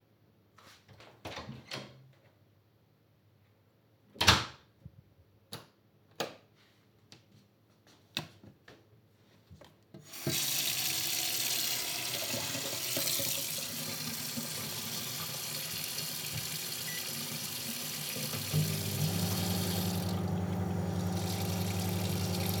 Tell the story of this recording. I turned on a light switch and opened a door. After passing through the door was closed again. Water was briefly turned on and later a microwave was started.